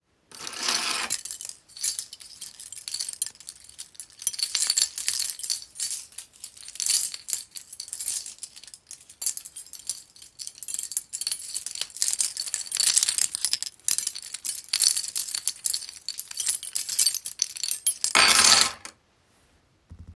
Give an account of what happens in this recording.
The phone is placed on a table in the bedroom. A keychain lying on the table is picked up and swung briefly. Afterwards it is placed back on the table.